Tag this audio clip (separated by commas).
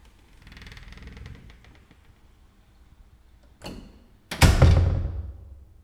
Door, Slam, home sounds